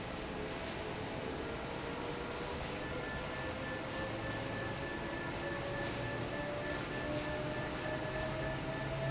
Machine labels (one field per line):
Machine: fan